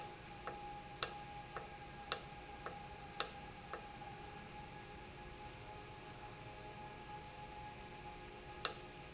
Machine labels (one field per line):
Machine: valve